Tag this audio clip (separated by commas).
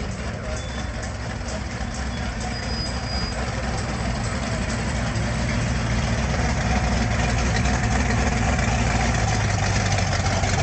Motor vehicle (road), Car passing by, Car, Vehicle, Music